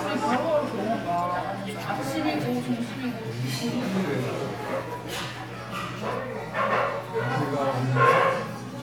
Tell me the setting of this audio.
crowded indoor space